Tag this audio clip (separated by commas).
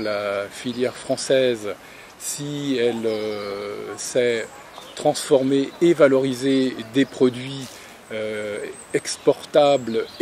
Speech